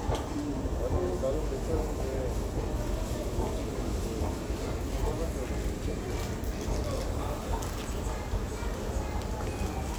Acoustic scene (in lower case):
crowded indoor space